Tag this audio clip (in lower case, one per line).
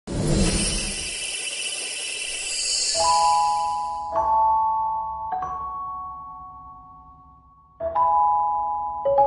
music